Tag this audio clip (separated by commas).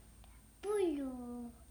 Child speech, Human voice, Speech